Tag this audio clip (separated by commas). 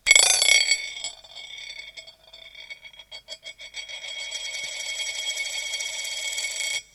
Domestic sounds, Coin (dropping)